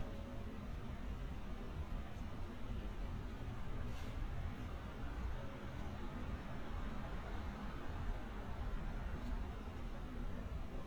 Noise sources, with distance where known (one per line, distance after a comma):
background noise